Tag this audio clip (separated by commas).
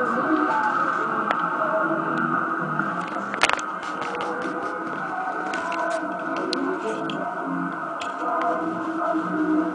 Music, Radio